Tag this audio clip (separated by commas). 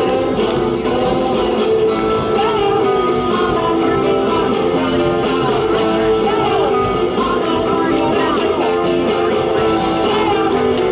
Music, Spray